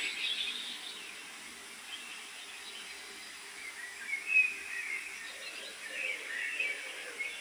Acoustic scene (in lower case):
park